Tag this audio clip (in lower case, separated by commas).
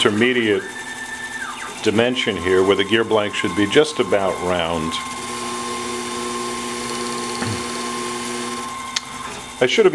speech, tools